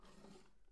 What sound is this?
wooden drawer opening